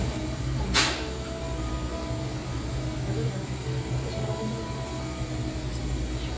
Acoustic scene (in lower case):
cafe